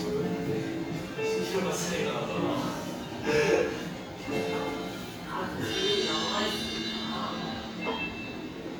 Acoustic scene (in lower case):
cafe